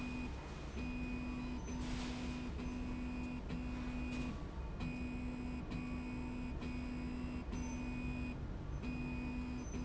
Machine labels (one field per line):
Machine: slide rail